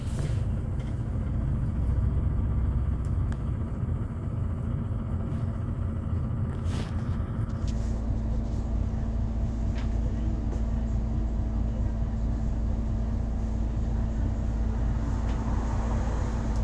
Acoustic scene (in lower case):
bus